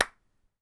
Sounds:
hands, clapping

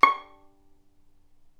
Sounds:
bowed string instrument, music, musical instrument

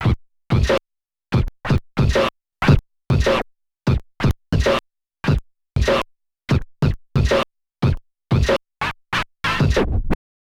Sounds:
scratching (performance technique), music, musical instrument

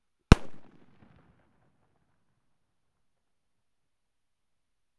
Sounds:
fireworks, explosion

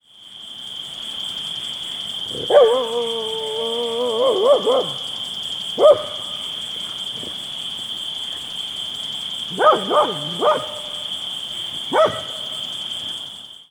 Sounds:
bark, cricket, pets, dog, insect, wild animals, animal

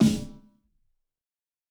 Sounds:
drum, musical instrument, percussion, music, snare drum

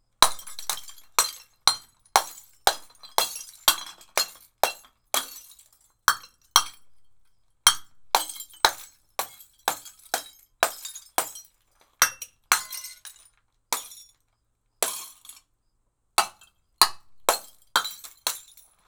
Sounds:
shatter, hammer, glass, tools

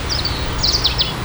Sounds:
animal, chirp, bird song, bird, wild animals

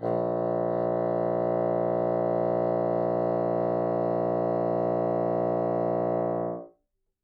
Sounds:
music, wind instrument, musical instrument

